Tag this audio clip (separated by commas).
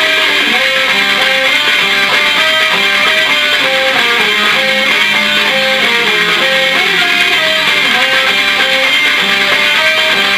Music